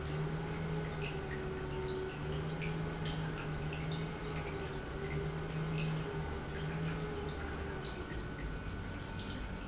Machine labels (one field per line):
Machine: pump